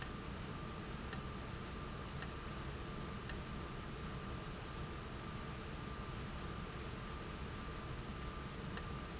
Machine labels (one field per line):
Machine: valve